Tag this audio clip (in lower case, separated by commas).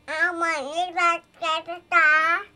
speech, human voice